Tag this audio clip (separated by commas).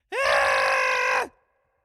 Human voice, Screaming